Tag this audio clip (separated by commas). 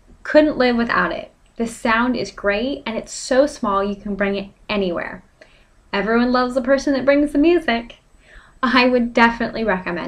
Speech